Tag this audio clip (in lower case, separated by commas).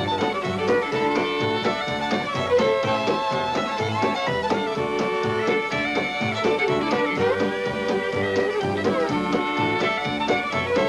violin, music, musical instrument